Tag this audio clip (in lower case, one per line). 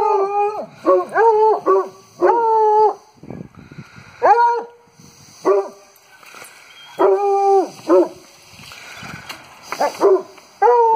dog baying